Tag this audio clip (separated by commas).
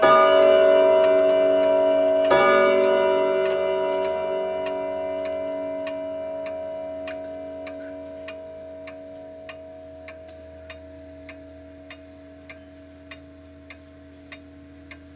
Tick-tock, Clock, Mechanisms